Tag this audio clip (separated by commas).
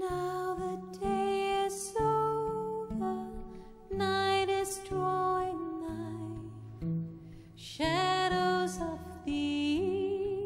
inside a large room or hall, Music, Singing